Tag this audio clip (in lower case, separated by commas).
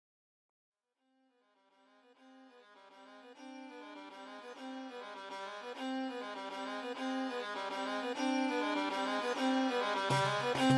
music